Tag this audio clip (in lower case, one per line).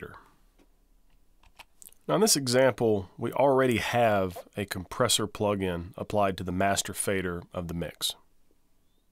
speech